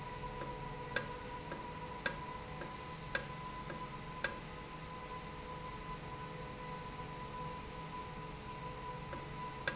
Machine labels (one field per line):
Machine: valve